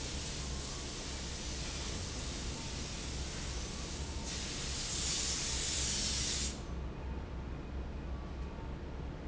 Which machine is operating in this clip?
fan